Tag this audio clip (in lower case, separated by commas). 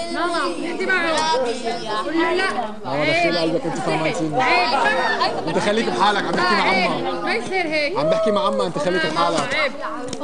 chatter, speech